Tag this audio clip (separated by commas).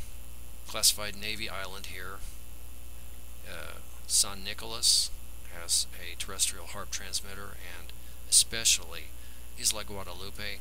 Speech